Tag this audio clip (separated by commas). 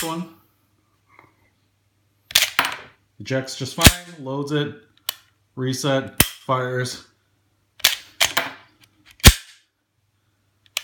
cap gun shooting